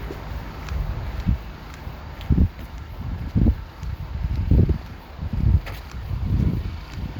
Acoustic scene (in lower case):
street